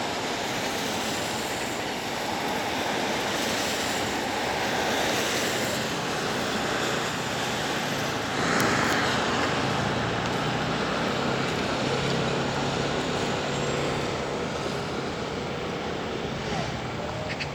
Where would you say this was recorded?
on a street